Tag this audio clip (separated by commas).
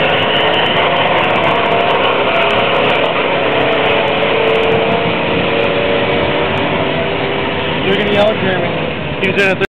Speech